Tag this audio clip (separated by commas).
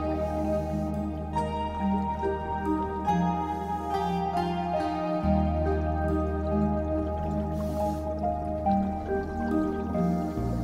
Music